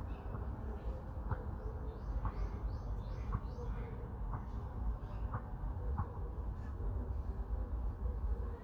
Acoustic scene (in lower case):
park